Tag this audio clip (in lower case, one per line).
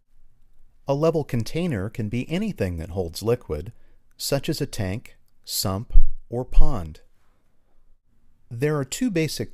speech